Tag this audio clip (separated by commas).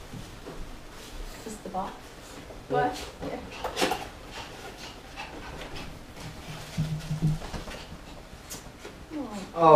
Speech, inside a small room